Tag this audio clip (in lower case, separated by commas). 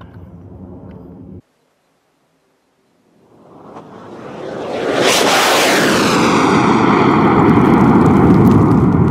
missile launch